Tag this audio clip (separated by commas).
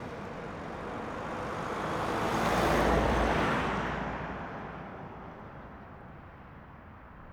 Motor vehicle (road), Vehicle, Traffic noise, Engine, Car, Car passing by